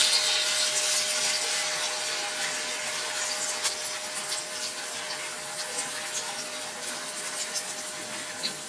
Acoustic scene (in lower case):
kitchen